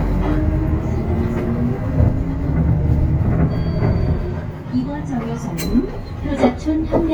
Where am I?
on a bus